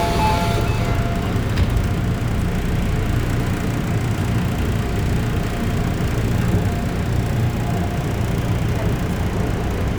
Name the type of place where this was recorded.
subway station